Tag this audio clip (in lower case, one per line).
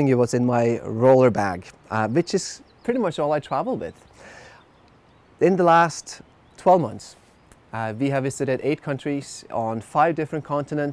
speech